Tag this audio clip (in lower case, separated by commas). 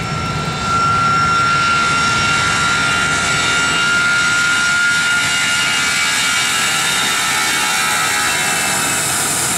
aircraft engine, outside, urban or man-made, vehicle, aircraft, propeller, airplane